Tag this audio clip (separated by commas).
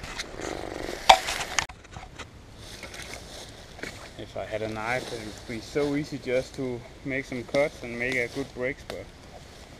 Speech, outside, rural or natural